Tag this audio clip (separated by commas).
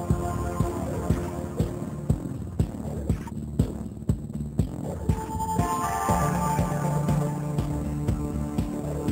Music